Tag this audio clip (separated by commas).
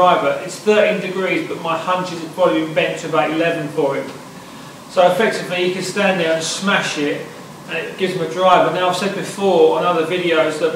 Speech